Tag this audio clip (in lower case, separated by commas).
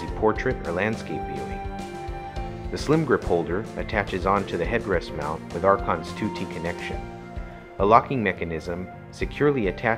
music, speech